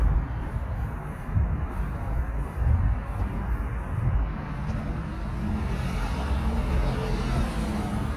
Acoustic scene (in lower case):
residential area